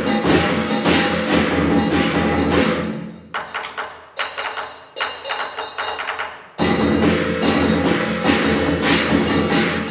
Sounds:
Wood block, Drum, Percussion

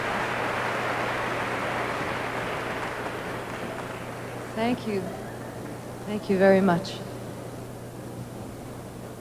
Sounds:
Speech

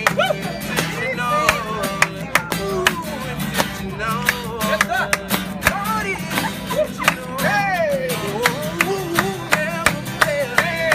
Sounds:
Music

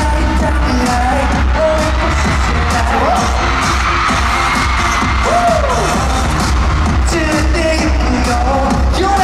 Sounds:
Music, Disco

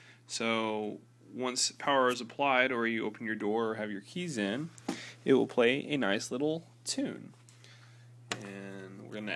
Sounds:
Speech

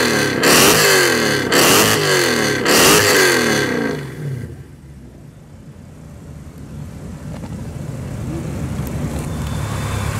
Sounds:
Car, Vehicle, outside, rural or natural, Race car

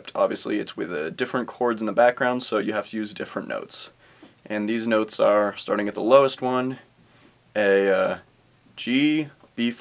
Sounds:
Speech

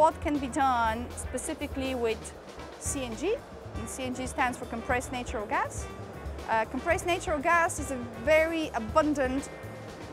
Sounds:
Speech, Music

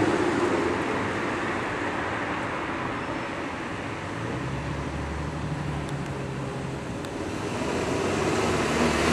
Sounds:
Car passing by

